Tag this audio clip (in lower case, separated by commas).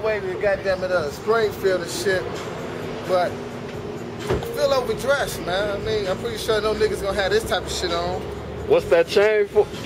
car passing by